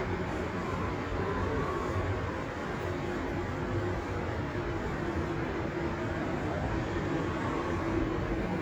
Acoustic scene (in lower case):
subway station